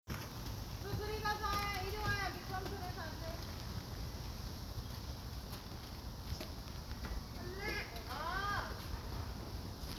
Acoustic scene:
park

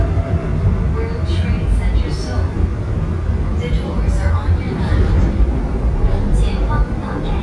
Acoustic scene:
subway train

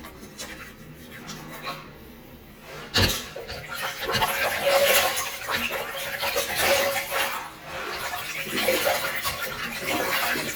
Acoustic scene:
restroom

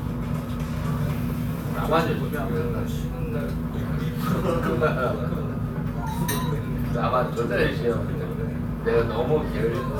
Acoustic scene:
crowded indoor space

